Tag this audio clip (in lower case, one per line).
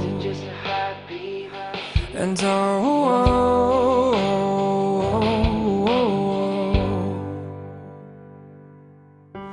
music